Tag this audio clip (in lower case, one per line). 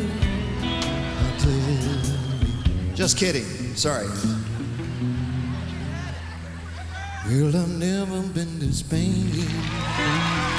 speech
music